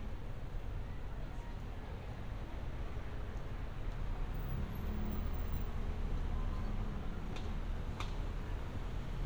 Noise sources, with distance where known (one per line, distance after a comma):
medium-sounding engine
large-sounding engine
non-machinery impact
person or small group shouting